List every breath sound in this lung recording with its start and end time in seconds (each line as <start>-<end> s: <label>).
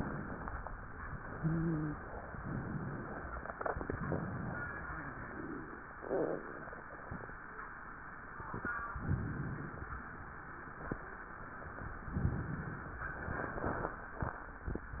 1.33-2.00 s: wheeze
2.32-3.49 s: inhalation
3.57-4.74 s: exhalation
8.91-9.92 s: inhalation
12.10-13.10 s: inhalation
13.10-14.19 s: exhalation